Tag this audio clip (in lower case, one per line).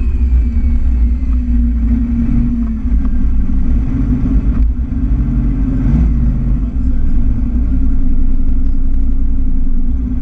speech
vehicle
outside, urban or man-made
car